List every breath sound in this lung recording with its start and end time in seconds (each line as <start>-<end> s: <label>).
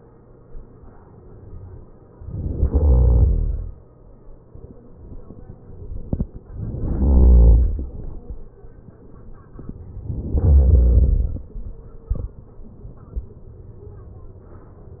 2.22-3.29 s: inhalation
6.72-7.79 s: inhalation
10.36-11.46 s: inhalation